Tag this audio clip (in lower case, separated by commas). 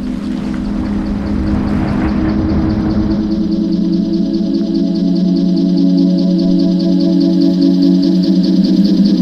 outside, urban or man-made, outside, rural or natural, music